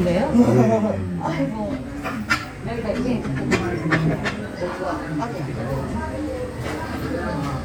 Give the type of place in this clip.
restaurant